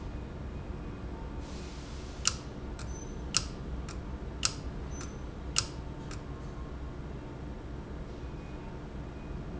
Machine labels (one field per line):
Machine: valve